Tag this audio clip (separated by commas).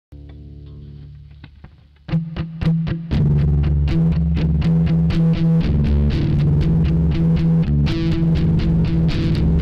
Music